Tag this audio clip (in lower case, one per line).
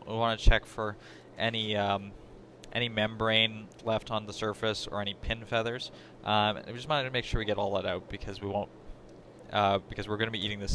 speech